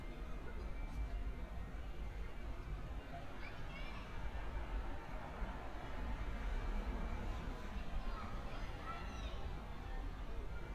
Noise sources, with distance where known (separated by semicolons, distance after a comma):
medium-sounding engine, far; music from an unclear source, far; person or small group shouting, far